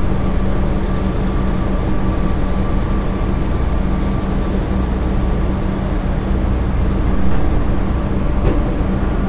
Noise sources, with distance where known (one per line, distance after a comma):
engine of unclear size, near